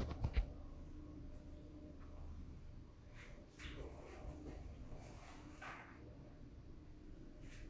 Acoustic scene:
elevator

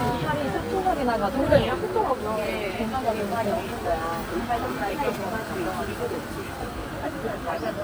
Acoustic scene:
residential area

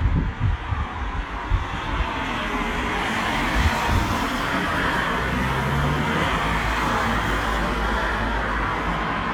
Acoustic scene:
street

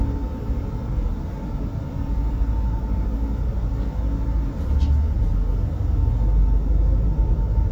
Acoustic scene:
bus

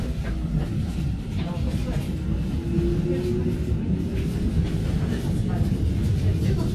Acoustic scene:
subway train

